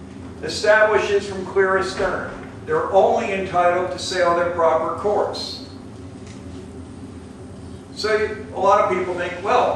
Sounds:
speech

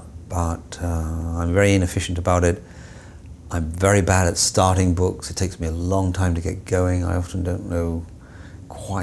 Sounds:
speech

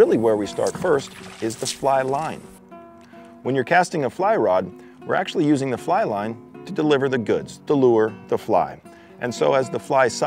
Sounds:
music
speech

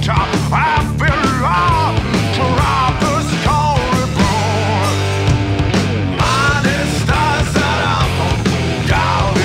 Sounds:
music

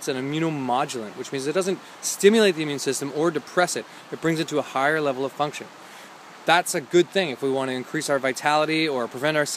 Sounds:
speech

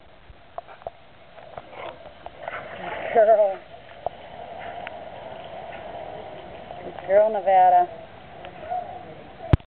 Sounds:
speech

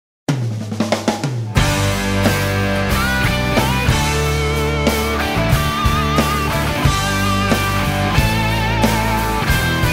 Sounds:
rimshot
bass drum
drum
drum kit
snare drum
percussion

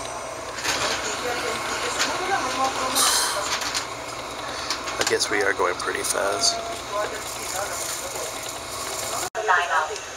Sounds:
train
inside a public space
vehicle
speech

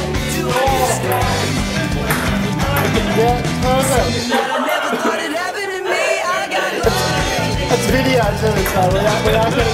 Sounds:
speech
music

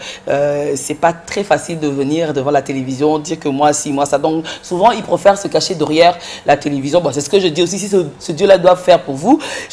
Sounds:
speech

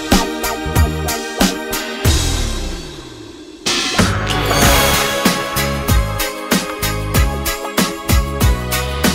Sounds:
music
independent music

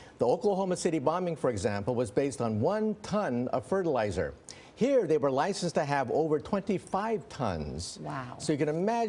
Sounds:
speech

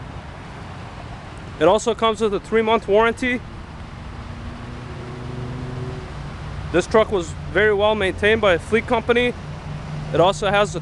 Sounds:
speech

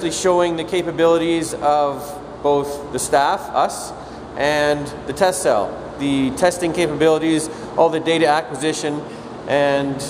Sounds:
speech

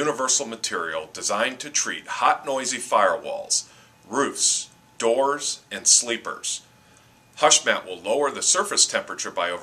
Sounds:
speech

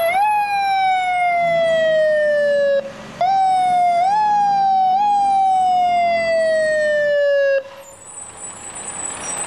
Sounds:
vehicle

